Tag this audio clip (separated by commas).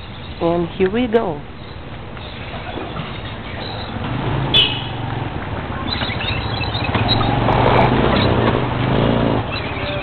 Speech, outside, urban or man-made